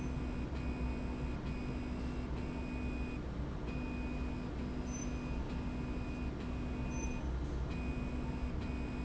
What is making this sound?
slide rail